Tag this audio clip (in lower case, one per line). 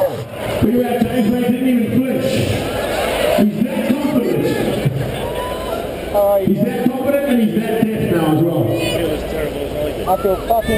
speech